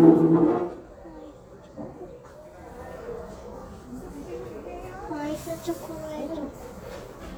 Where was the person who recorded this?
in a cafe